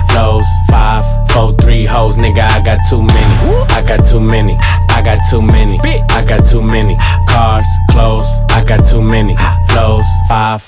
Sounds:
rapping

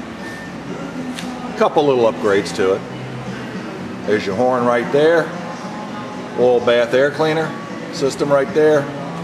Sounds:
music
speech

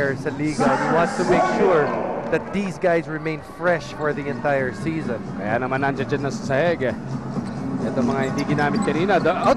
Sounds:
music
speech

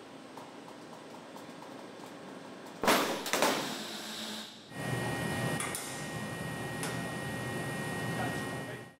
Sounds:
static

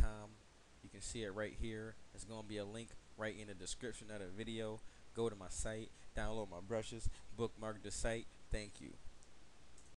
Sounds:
speech

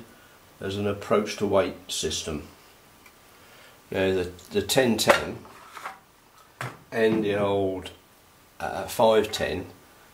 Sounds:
speech
inside a small room

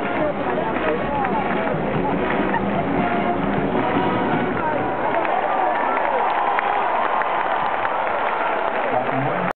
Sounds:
music
speech

